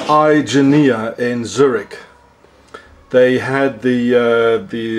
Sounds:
speech

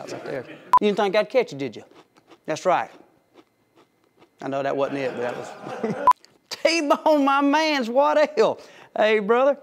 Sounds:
speech

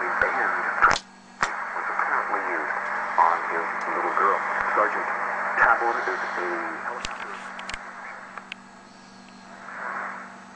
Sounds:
speech, radio

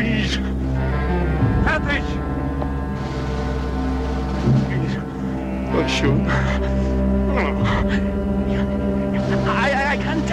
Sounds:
music, speech

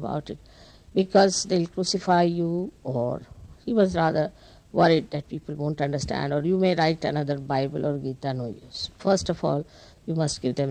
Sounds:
speech

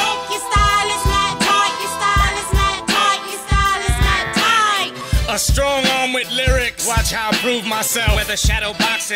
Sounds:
music, rapping

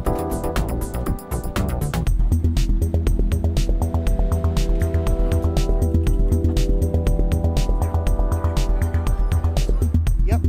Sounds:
music

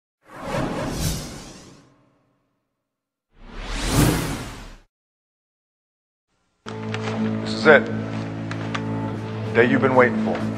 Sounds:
sound effect

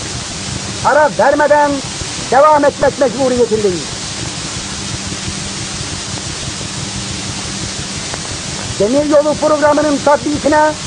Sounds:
speech

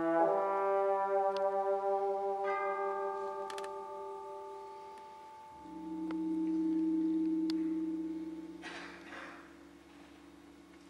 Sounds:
trumpet, brass instrument, musical instrument, classical music, music, orchestra

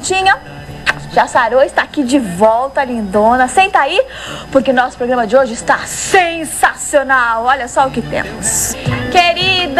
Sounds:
speech, music

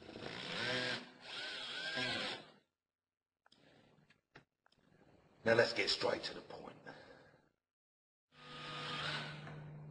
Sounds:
speech, tools

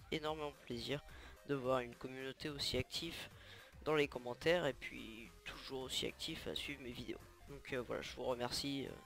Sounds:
speech, music

